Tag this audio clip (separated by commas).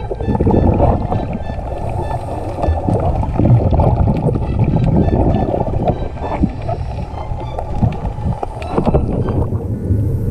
scuba diving